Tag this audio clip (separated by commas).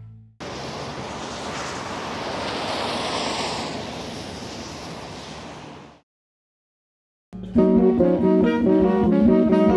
Music, Vehicle